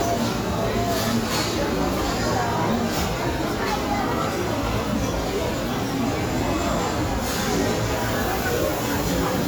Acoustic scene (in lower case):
restaurant